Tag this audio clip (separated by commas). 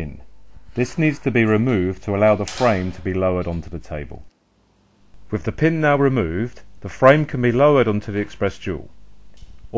Speech